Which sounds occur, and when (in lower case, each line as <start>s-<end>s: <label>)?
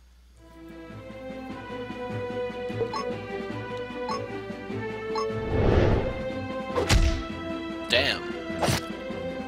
0.0s-9.4s: music
5.1s-5.3s: sound effect
5.5s-6.1s: male speech
8.6s-8.8s: whack